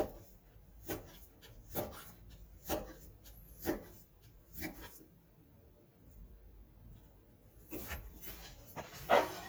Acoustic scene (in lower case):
kitchen